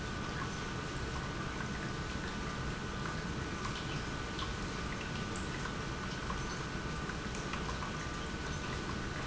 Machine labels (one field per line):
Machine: pump